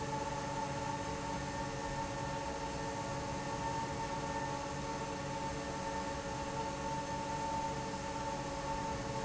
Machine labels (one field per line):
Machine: fan